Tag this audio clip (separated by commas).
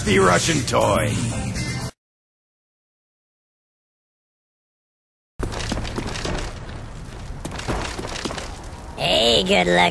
Speech, Music